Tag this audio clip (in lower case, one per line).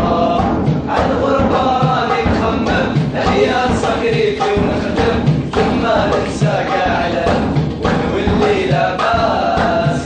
music
mantra